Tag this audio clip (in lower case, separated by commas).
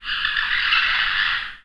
animal